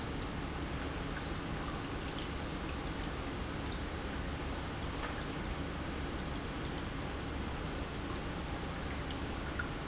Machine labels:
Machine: pump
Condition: normal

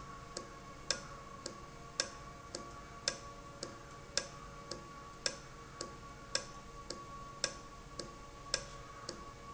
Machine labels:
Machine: valve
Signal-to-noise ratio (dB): 6 dB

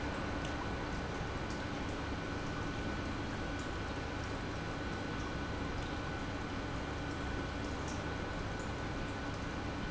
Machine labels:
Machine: pump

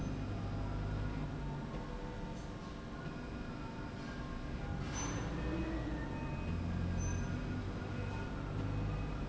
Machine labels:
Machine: slide rail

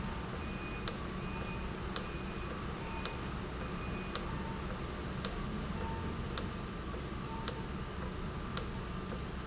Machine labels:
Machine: valve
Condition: normal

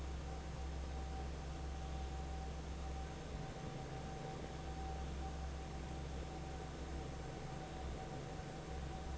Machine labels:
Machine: fan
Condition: normal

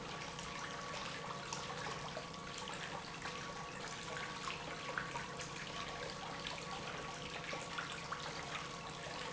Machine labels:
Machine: pump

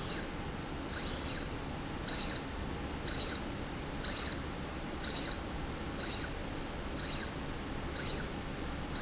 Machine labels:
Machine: slide rail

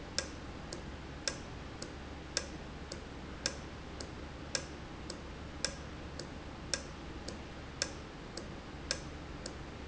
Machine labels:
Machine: valve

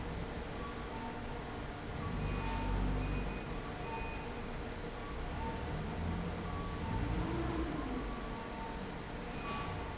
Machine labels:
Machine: fan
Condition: abnormal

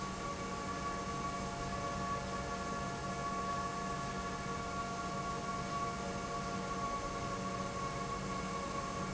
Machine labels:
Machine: pump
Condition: normal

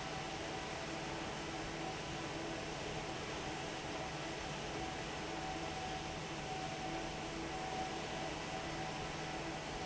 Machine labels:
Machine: fan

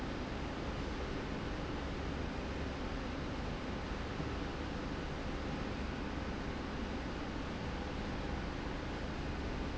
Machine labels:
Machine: slide rail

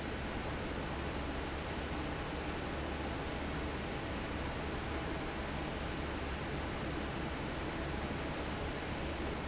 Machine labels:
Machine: fan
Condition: normal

